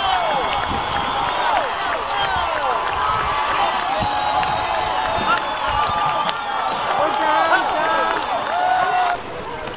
The sound of the crowd clapping is heard